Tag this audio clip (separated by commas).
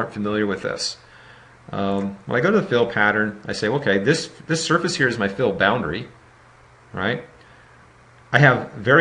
Speech